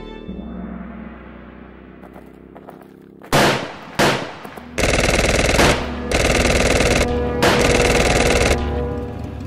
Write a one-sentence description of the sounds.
Gun shots then automatic gun sounds